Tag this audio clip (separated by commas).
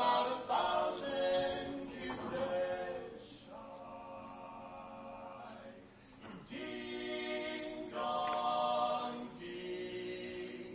Music